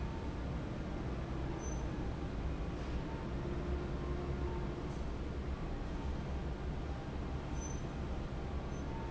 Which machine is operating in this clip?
fan